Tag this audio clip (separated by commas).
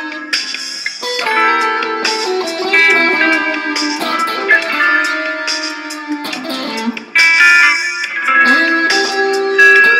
Musical instrument, Guitar, Music, Plucked string instrument, Strum